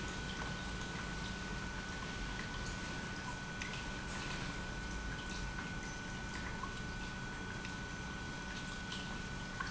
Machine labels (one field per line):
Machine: pump